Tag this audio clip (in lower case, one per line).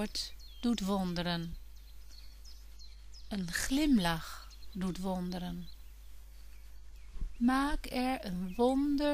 speech